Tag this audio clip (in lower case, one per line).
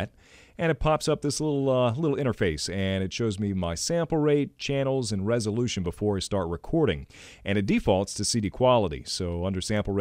speech